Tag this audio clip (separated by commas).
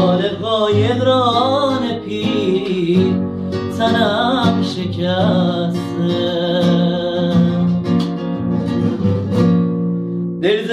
Plucked string instrument, Musical instrument, Guitar, Music, Acoustic guitar